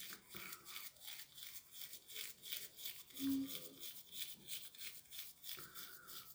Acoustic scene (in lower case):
restroom